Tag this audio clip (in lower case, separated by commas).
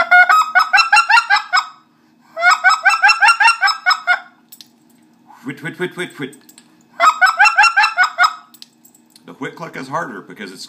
speech